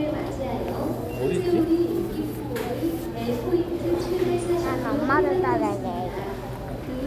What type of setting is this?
crowded indoor space